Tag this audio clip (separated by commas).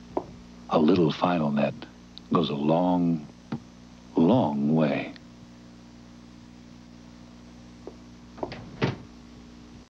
Speech